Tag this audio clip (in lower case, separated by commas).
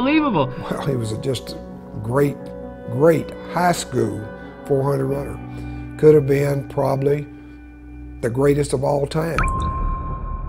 music, speech, inside a small room